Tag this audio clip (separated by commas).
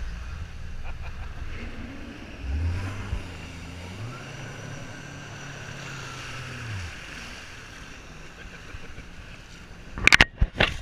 Boat, Vehicle